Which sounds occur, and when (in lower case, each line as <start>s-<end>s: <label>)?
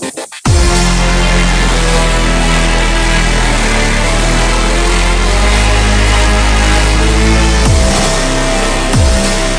0.0s-9.5s: music